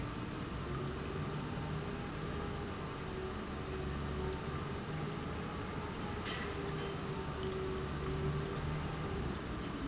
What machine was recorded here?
pump